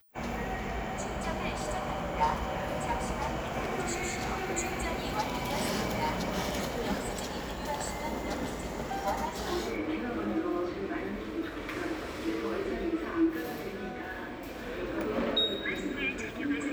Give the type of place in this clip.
subway station